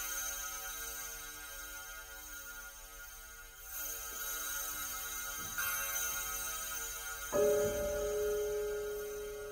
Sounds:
Music, Piano

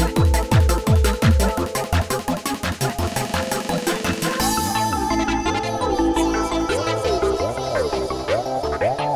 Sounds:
Music, Trance music, Electronic music

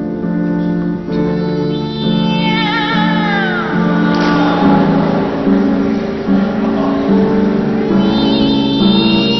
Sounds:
Music, Meow

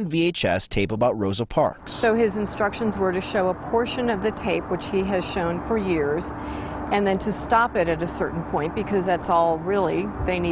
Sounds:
Speech

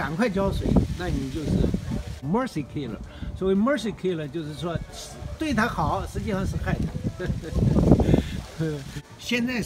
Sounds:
cattle mooing

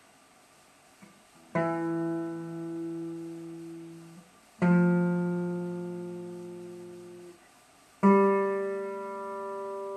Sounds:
Musical instrument, Music, Plucked string instrument, Acoustic guitar, Strum, Guitar

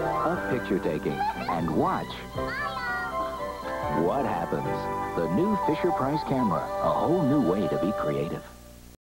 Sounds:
Speech, Music

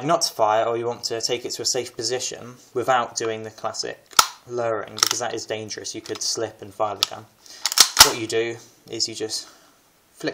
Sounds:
inside a small room, Speech

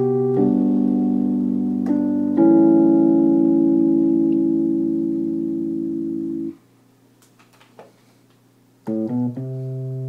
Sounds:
Music

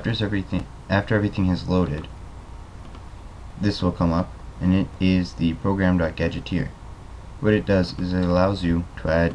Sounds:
Speech

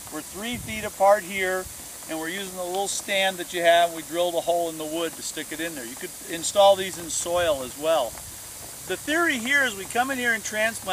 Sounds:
Speech

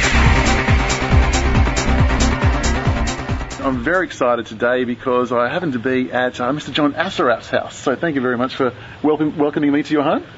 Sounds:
Speech, Music

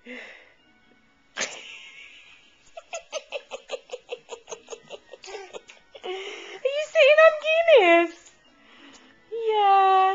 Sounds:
Music, Speech

